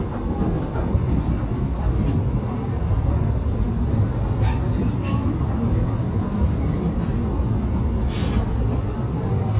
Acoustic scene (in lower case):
subway train